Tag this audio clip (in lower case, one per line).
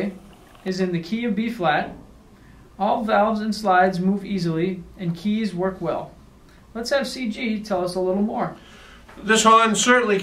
speech